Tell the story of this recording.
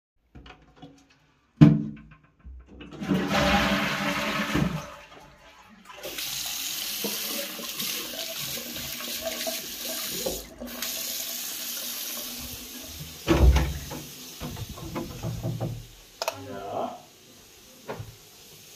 Toilet is flushed, water is turned on, moving out of bathroom, opening and closing a door, while the water is left on running.